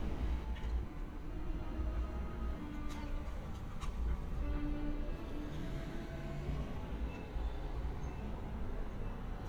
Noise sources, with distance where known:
engine of unclear size, far
music from a fixed source

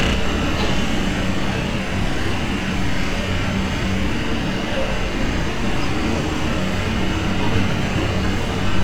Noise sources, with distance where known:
jackhammer, near

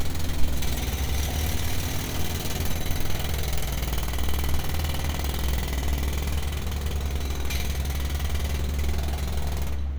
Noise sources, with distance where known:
jackhammer, near

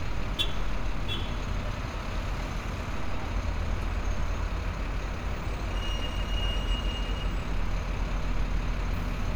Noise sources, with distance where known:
medium-sounding engine
large-sounding engine, near
car horn

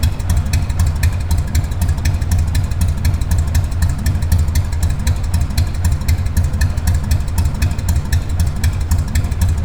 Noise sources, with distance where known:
engine of unclear size, near

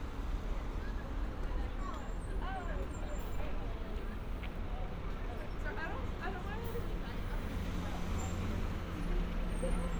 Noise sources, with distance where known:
person or small group talking, near

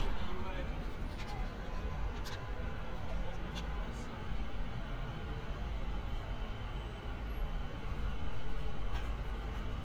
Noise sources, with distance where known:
person or small group talking

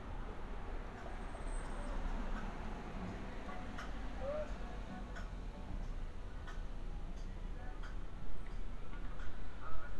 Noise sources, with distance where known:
music from an unclear source, far

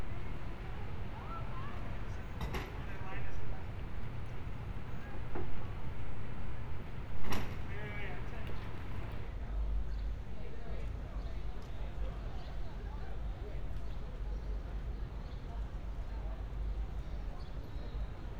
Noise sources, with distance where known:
person or small group talking

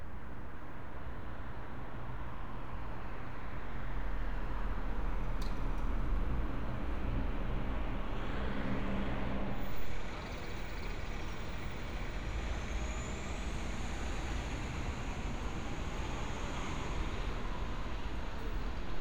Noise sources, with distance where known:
medium-sounding engine

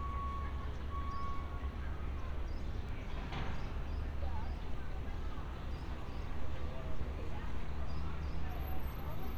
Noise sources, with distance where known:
reverse beeper, far
person or small group talking, far

